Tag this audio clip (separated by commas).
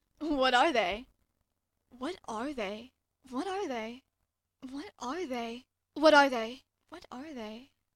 Human voice